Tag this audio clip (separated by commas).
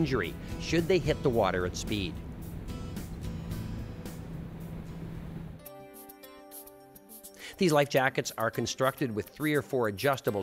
Speech, Music